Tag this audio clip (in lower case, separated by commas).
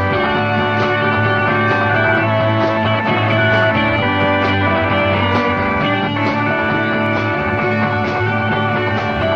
music